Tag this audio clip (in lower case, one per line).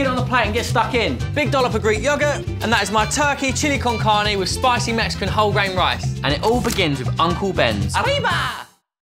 speech
music